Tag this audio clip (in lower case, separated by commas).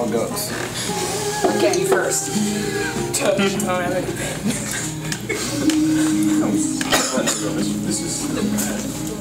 inside a public space, speech, music